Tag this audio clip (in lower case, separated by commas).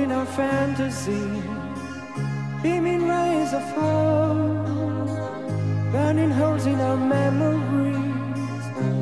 music